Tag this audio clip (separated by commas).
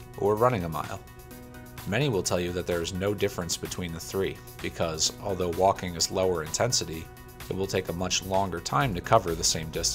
Speech, Music